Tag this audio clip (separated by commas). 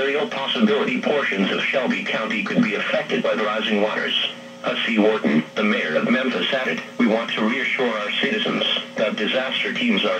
Speech, Radio